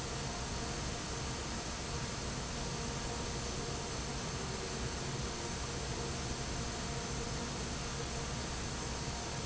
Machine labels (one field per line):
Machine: fan